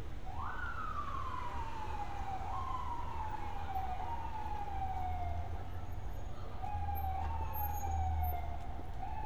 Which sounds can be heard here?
siren, unidentified human voice